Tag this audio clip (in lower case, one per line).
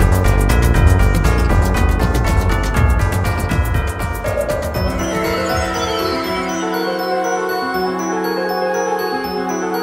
music